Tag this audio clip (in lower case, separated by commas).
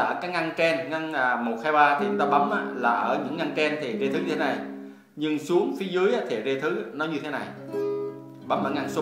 speech, music, musical instrument, guitar, strum, plucked string instrument